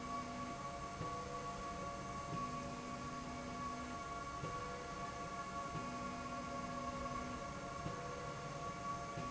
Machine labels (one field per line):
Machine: slide rail